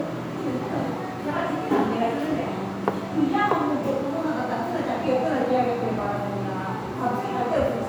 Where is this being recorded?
in a crowded indoor space